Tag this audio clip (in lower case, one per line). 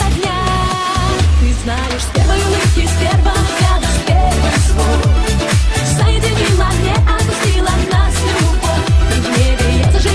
music
soundtrack music